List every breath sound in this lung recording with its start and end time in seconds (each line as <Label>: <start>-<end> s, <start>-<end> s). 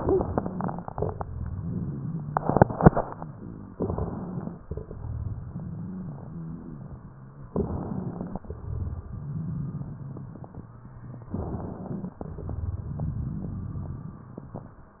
Inhalation: 3.72-4.57 s, 7.55-8.41 s, 11.33-12.18 s
Exhalation: 4.67-5.01 s, 8.56-9.19 s, 12.26-12.88 s
Crackles: 3.72-4.57 s, 4.67-7.02 s, 7.55-8.41 s, 8.56-10.63 s, 11.33-12.18 s, 12.26-14.42 s